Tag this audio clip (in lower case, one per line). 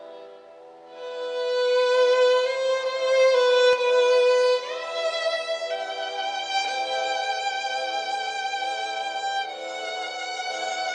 violin
musical instrument
music